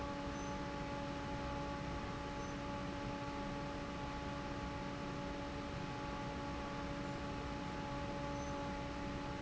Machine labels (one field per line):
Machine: fan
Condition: normal